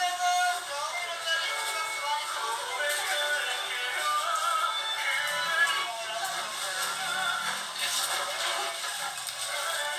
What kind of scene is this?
crowded indoor space